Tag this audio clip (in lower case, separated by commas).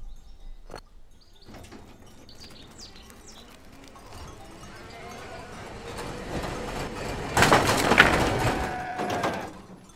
animal, dog